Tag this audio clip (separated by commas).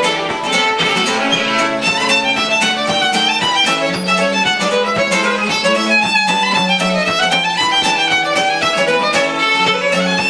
Musical instrument, String section, Bowed string instrument, Music, Guitar